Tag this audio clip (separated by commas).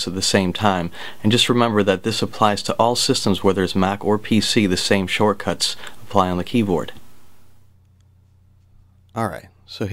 Speech